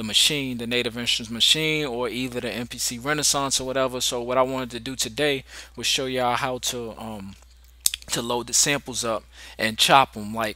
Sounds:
Speech

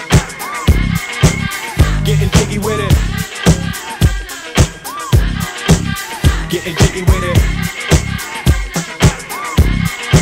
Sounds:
Disco

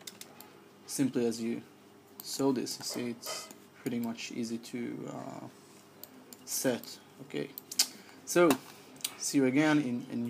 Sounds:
Computer keyboard, Speech

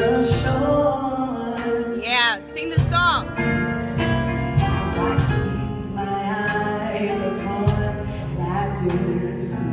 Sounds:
Female singing, Speech, Music

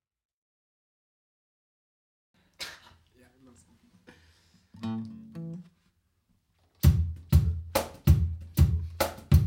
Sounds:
Speech, Music

